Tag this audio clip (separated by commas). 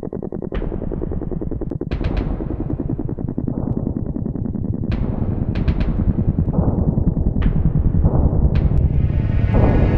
Music